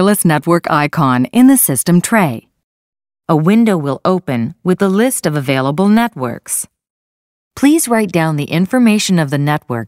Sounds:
Speech

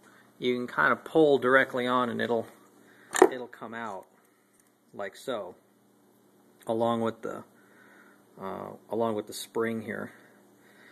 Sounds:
Speech

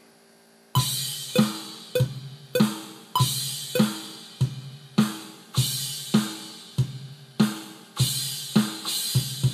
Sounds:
Cymbal

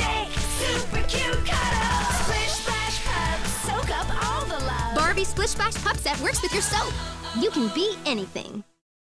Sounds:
Music, Speech

